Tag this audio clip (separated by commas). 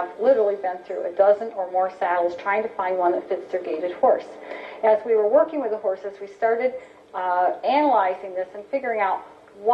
Speech